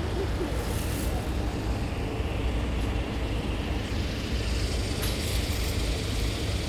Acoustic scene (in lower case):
street